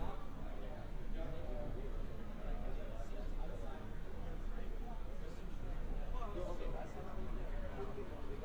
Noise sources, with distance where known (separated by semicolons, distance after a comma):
person or small group talking